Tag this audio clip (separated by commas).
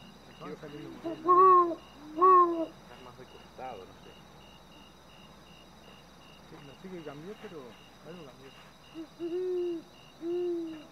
owl hooting